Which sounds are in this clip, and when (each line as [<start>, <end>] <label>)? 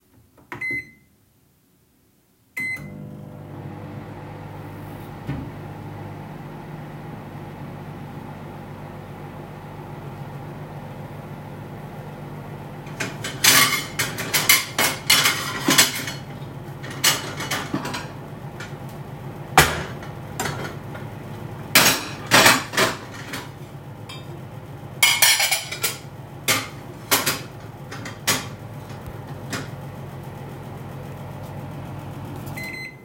[0.46, 1.01] microwave
[2.52, 33.04] microwave
[12.96, 16.20] cutlery and dishes
[16.87, 18.12] cutlery and dishes
[19.44, 20.89] cutlery and dishes
[21.62, 23.46] cutlery and dishes
[24.82, 29.75] cutlery and dishes